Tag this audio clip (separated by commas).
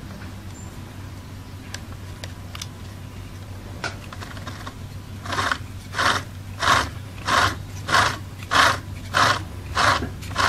Wood